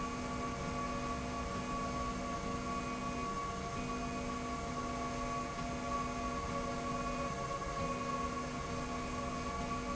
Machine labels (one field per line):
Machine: slide rail